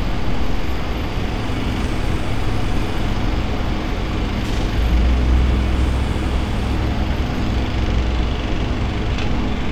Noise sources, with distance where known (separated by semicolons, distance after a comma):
large-sounding engine, near